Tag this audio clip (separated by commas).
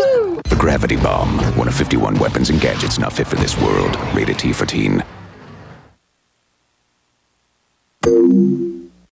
Music, Speech